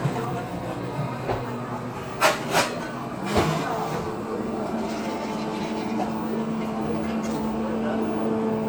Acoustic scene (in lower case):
cafe